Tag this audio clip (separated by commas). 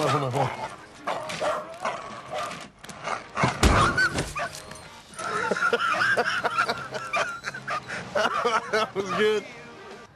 Dog, Bow-wow, Music, Speech, Whimper (dog), Domestic animals, Animal